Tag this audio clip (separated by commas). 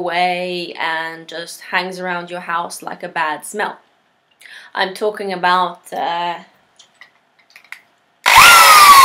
Speech, Tools